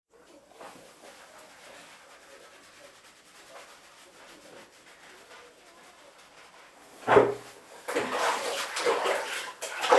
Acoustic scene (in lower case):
restroom